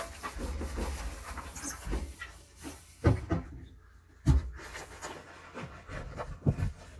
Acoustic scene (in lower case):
kitchen